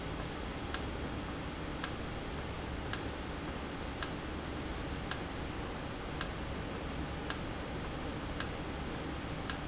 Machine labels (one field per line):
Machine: valve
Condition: normal